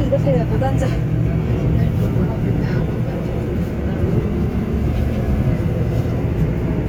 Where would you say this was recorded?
on a subway train